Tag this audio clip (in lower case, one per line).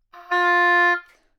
wind instrument
musical instrument
music